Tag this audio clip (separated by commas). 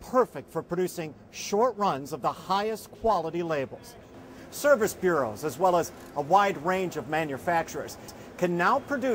Speech, Printer